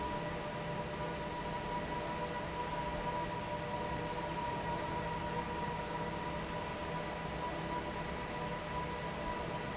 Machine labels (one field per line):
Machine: fan